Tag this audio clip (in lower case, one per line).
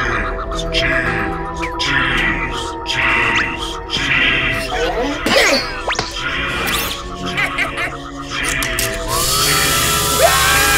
music
speech